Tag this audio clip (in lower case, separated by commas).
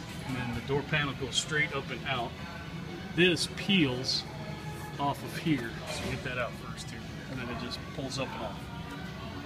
speech, music